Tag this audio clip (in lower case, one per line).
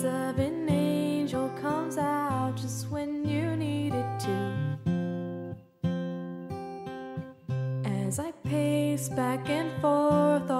music
blues